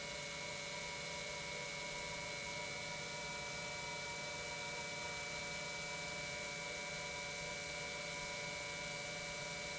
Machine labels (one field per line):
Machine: pump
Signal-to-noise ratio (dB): 6 dB